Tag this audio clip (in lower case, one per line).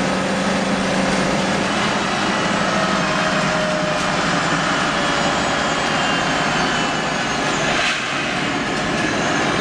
vehicle
bus